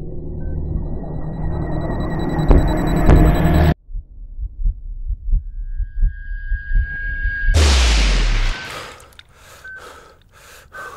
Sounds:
inside a large room or hall, Music

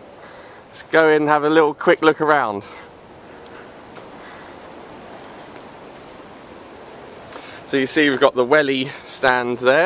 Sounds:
Speech

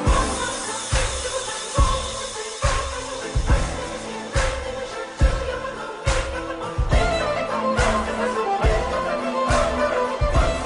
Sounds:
Music

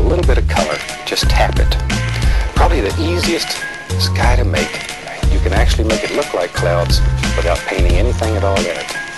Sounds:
Speech, Music, Tap

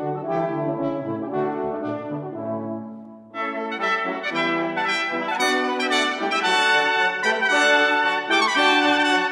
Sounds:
playing french horn, French horn, Brass instrument

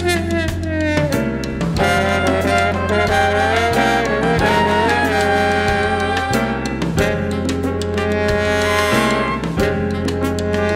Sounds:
Music

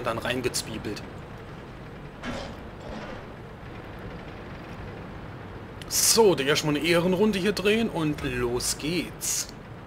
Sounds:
Speech

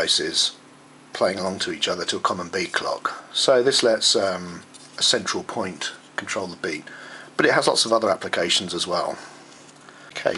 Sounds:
Speech

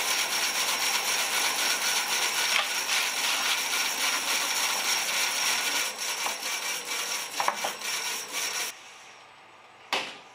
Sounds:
lathe spinning

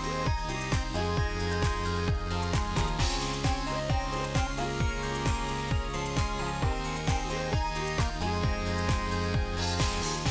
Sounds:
Music, Sound effect

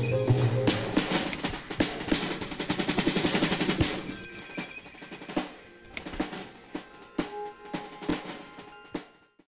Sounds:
Music, Single-lens reflex camera

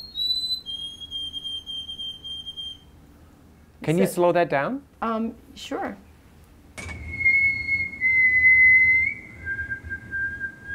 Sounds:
Speech

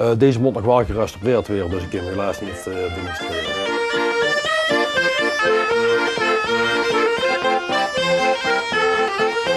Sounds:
Bagpipes, Accordion, woodwind instrument

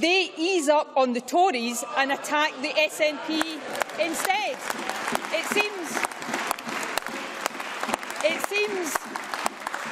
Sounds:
Applause, Speech

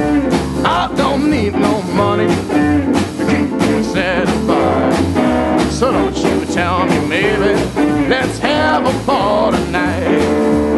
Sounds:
Music

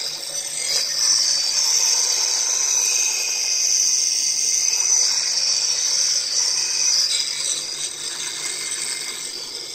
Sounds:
inside a small room, Drill, Speech

